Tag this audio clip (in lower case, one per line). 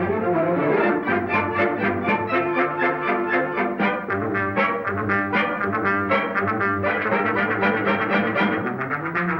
musical instrument
music